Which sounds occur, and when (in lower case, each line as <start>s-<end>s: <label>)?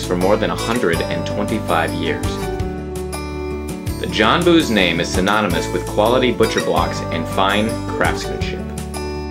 0.0s-2.2s: man speaking
0.0s-9.3s: music
3.9s-8.6s: man speaking